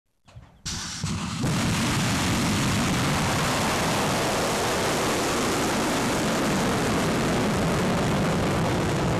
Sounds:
missile launch

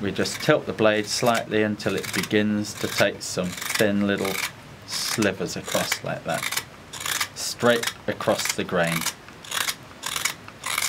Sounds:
Speech

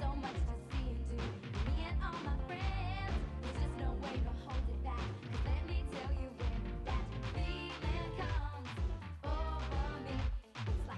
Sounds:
Music

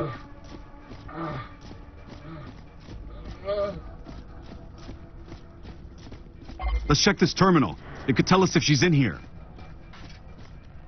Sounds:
Speech

